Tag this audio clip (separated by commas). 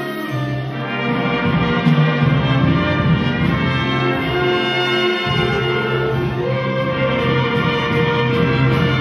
Music, Orchestra